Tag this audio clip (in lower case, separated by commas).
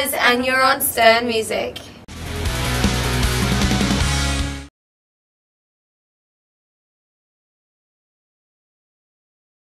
music, speech